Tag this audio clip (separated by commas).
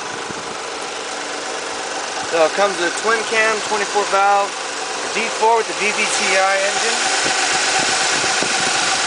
outside, urban or man-made, Vehicle, Speech